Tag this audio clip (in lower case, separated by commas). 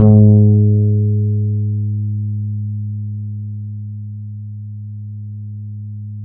music, guitar, plucked string instrument, musical instrument, bass guitar